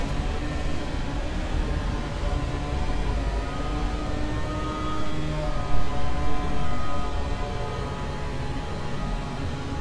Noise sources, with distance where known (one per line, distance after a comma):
unidentified powered saw
reverse beeper, far